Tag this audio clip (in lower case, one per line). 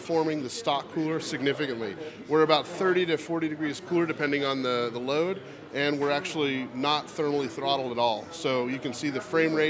speech